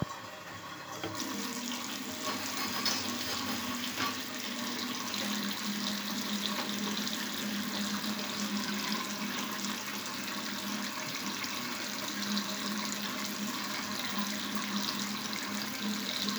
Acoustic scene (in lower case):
restroom